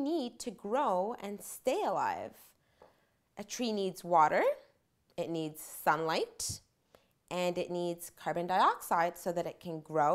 She is talking